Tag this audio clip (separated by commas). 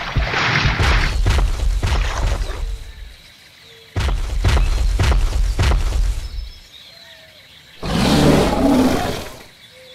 dinosaurs bellowing